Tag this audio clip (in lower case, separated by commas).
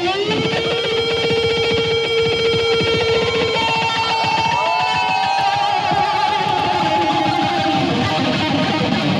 musical instrument, electric guitar, plucked string instrument, guitar, music, strum